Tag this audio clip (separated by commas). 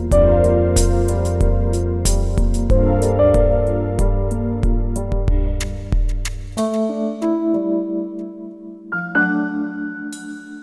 Soundtrack music, Music